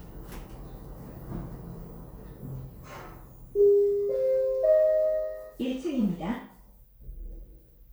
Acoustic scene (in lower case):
elevator